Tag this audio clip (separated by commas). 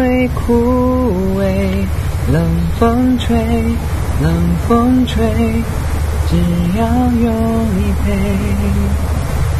Male singing